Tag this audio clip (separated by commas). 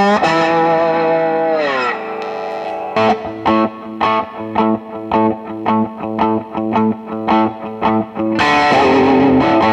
Music, Electric guitar